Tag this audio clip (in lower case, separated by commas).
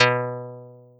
plucked string instrument, guitar, musical instrument, music